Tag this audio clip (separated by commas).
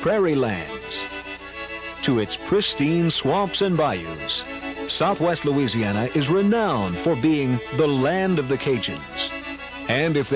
Music, Speech